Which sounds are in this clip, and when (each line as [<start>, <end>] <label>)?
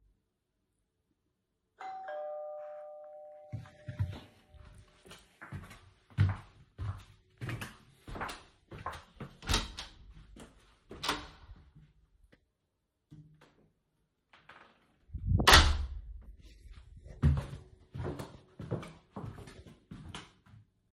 [1.76, 5.16] bell ringing
[3.89, 12.14] footsteps
[9.40, 12.22] door
[14.24, 16.62] door
[17.02, 20.93] footsteps